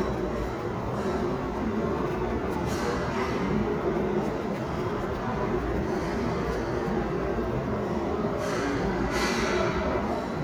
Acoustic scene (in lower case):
restaurant